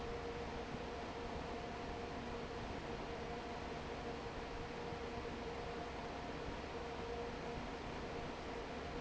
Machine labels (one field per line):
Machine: fan